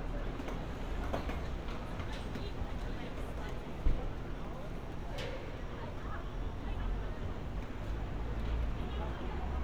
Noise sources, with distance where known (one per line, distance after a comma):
person or small group talking, far